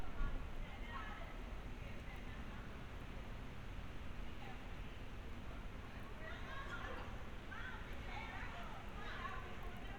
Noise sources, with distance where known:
person or small group talking, far

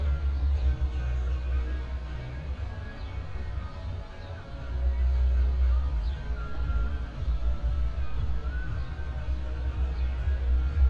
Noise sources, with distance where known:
music from an unclear source, far

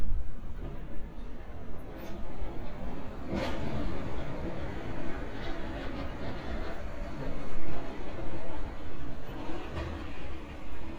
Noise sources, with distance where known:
engine of unclear size

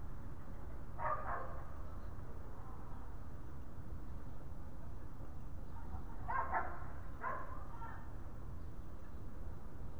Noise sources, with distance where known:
dog barking or whining, far

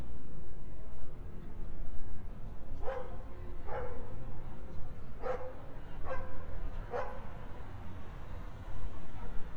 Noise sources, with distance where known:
dog barking or whining, near

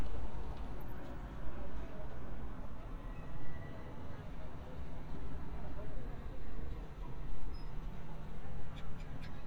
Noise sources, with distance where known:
unidentified human voice

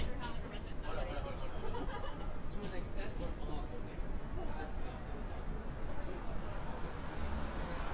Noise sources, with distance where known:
person or small group talking, near

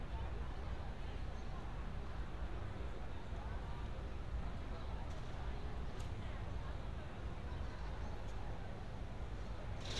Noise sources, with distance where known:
person or small group talking

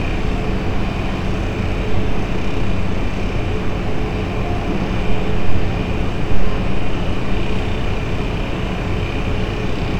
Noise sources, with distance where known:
engine of unclear size

